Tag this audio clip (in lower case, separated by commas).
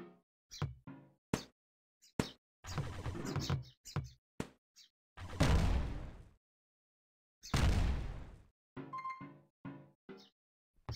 ping